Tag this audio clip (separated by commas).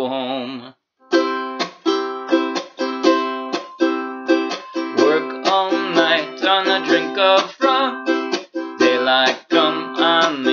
Music, Speech